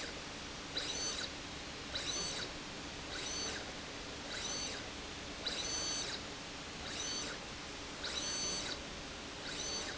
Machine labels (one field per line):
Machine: slide rail